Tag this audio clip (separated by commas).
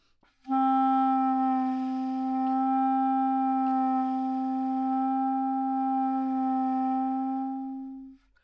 Music, Musical instrument, Wind instrument